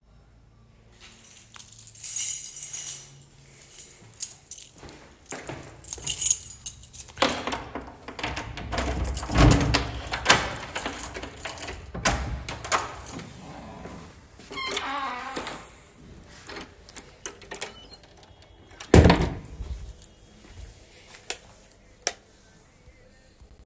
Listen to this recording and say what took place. I took the keys out of my pocket and inserted it into the door lock. I turned the key to unlock the door, opened it, and then closed it behind me. After entering my house, I turned on the light switch.